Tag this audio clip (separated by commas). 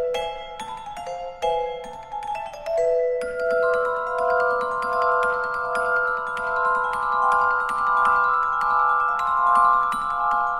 Glockenspiel, xylophone, Mallet percussion